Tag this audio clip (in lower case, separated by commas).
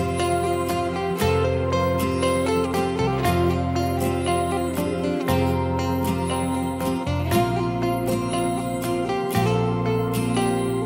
music, tender music